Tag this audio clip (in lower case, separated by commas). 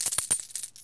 coin (dropping), domestic sounds